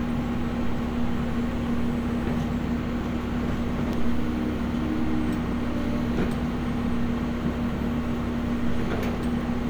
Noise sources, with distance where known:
large-sounding engine, near

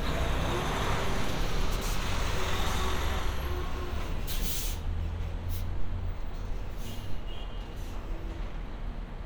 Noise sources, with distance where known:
medium-sounding engine, near; large-sounding engine, near; unidentified alert signal, far

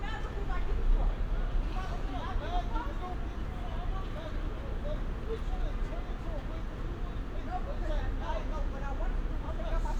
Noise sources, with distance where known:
car horn, far; person or small group talking

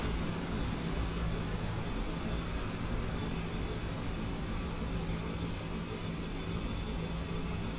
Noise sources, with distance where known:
engine of unclear size

